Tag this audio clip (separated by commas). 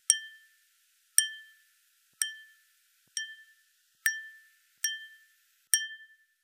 Glass